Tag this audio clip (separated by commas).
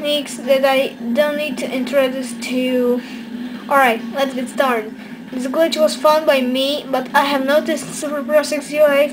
Speech